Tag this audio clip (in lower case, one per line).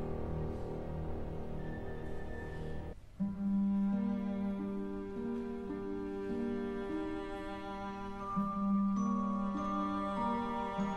music
musical instrument
piano